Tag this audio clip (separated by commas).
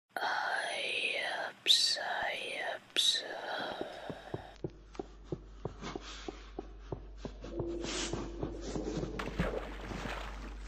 Whispering